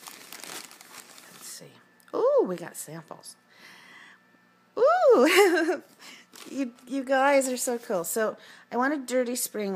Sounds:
Speech

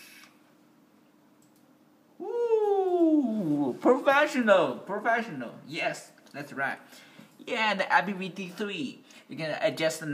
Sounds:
Speech, inside a small room

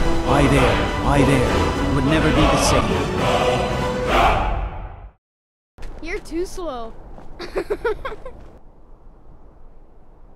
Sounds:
Speech, Music

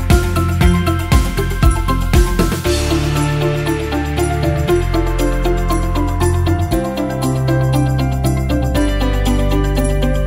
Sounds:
Music

